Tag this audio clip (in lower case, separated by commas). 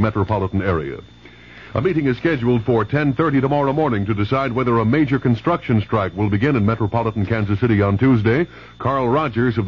speech, radio